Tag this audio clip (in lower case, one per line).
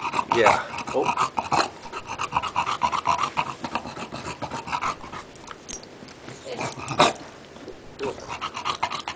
speech
animal